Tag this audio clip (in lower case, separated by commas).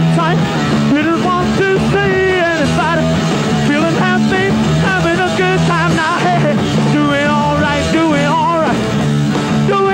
music, ska